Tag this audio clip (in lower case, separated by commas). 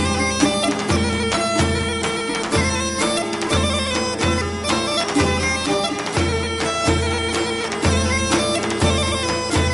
traditional music, music